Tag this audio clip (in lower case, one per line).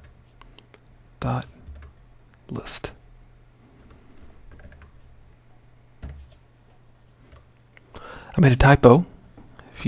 clicking
speech